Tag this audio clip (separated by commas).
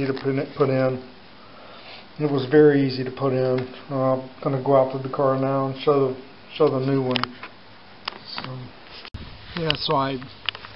Speech, inside a small room